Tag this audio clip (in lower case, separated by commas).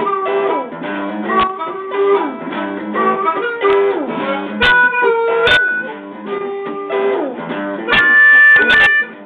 harmonica, music